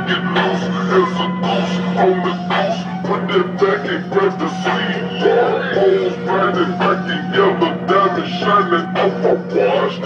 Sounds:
Music

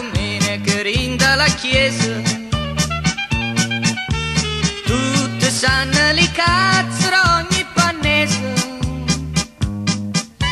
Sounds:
Music

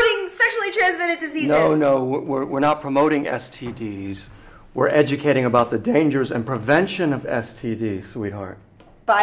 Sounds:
Speech

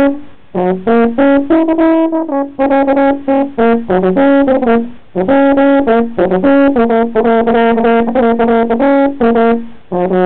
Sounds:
Music

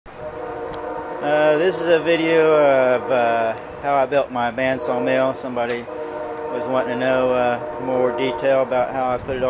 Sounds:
Train horn

